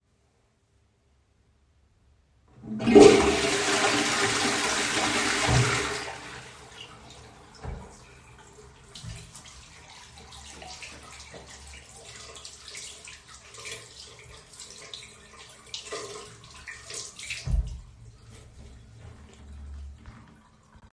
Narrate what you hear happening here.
I flushed the toilet, and then washed my hands on the bathroom sink.